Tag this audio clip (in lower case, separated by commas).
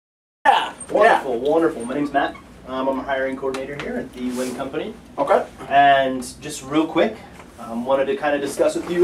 speech